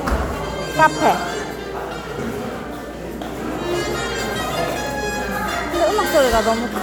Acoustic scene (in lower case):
cafe